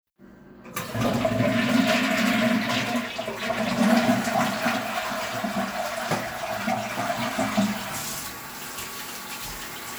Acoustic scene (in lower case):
restroom